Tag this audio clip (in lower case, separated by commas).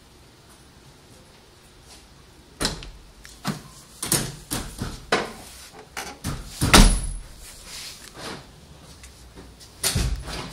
door